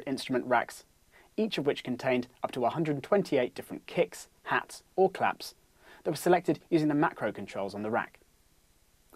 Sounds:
speech

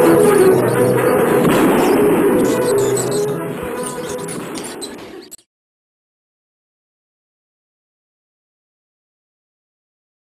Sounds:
music

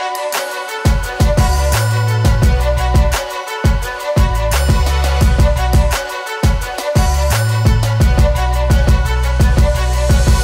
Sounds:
music

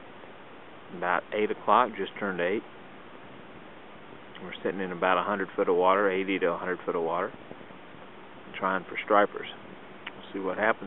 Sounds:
speech, water vehicle

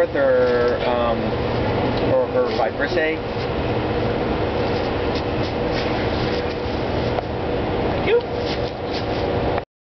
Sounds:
speech

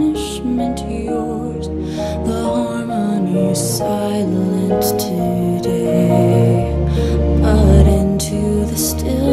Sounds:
lullaby, music

